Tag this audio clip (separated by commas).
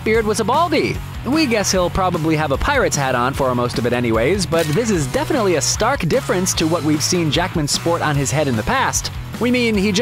Speech, Music